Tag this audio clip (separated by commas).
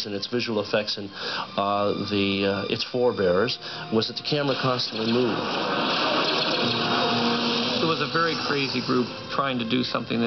Music, Speech